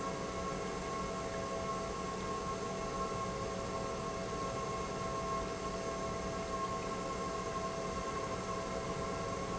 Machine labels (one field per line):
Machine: pump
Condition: normal